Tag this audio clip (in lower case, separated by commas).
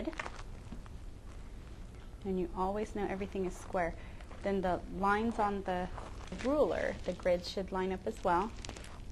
speech